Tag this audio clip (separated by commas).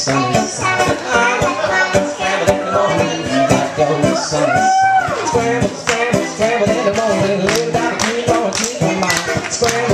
Male singing, Child singing, Music